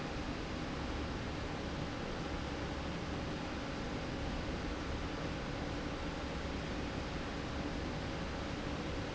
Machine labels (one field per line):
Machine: slide rail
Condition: normal